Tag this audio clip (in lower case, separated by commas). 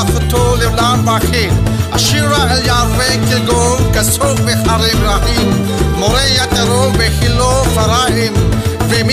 music, gospel music, christian music